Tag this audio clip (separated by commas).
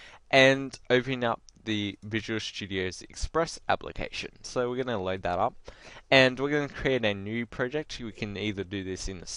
Speech